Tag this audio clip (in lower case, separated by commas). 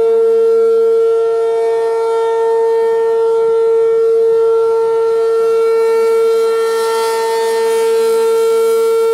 civil defense siren, siren